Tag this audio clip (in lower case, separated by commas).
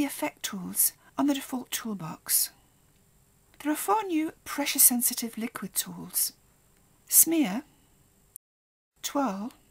speech